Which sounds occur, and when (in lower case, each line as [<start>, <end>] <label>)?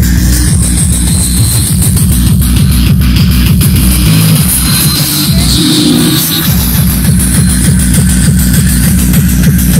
[0.00, 9.75] music
[0.00, 9.75] sound equipment